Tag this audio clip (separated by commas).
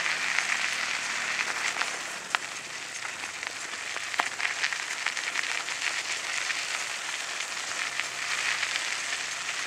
Bicycle, Vehicle